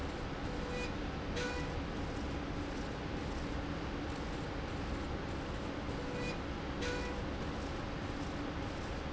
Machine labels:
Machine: slide rail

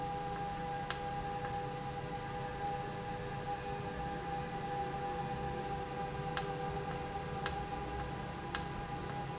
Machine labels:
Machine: valve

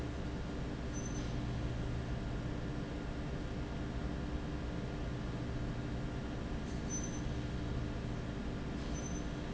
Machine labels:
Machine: fan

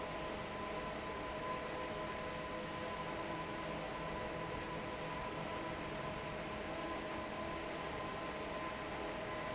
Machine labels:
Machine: fan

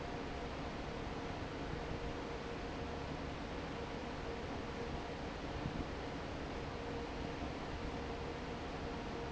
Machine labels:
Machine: fan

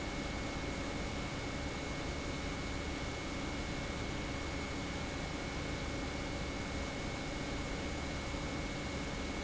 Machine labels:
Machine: pump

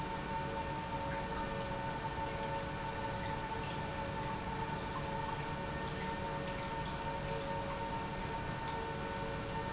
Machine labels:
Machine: pump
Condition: normal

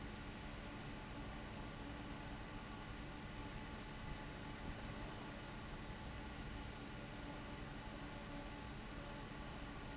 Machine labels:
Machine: fan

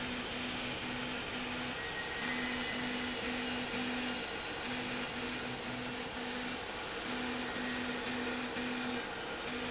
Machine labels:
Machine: slide rail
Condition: abnormal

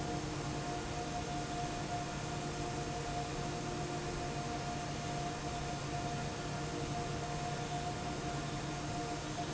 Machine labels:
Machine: fan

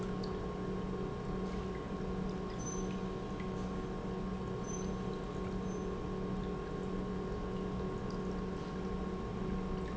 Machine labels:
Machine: pump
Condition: normal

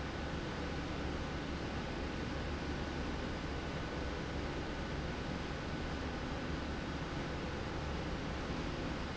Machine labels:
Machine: slide rail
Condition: normal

